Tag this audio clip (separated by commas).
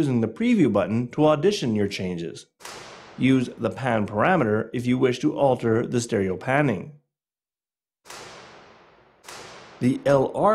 Speech